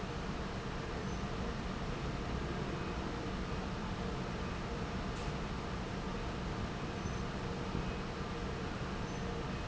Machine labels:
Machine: fan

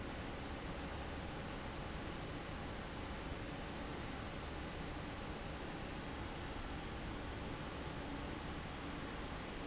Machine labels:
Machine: fan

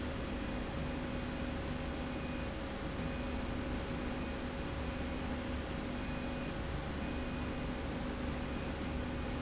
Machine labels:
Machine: slide rail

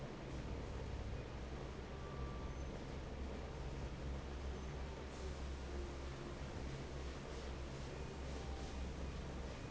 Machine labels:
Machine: fan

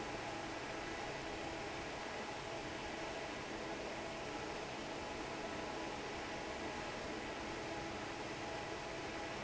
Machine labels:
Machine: fan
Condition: normal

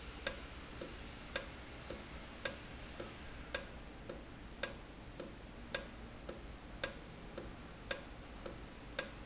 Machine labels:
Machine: valve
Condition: normal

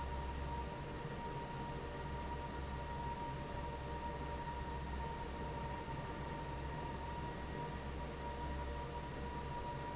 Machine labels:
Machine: fan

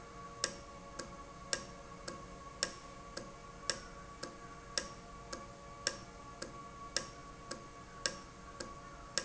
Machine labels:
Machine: valve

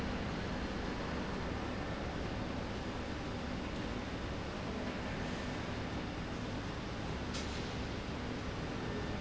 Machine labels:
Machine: slide rail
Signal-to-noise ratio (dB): -6 dB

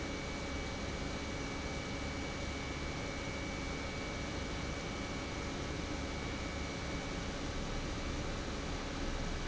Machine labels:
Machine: pump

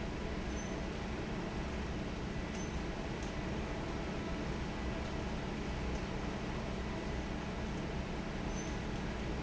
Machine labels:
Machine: fan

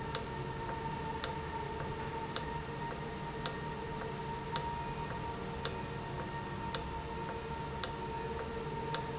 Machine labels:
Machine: valve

